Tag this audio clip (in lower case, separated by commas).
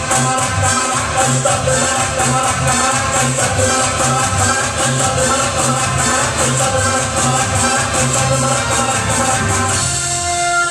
music, maraca